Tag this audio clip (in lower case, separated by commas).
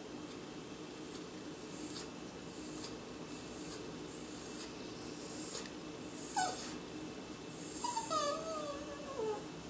dog whimpering